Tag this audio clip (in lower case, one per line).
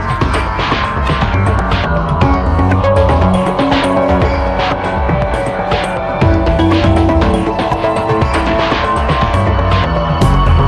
music